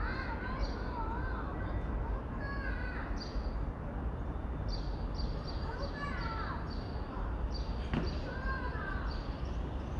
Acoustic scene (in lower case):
residential area